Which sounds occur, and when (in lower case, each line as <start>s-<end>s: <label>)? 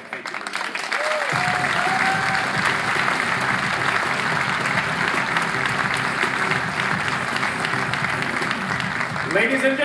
0.0s-0.7s: man speaking
0.0s-1.3s: background noise
0.0s-9.8s: clapping
0.9s-2.4s: cheering
1.3s-9.8s: music
9.2s-9.8s: man speaking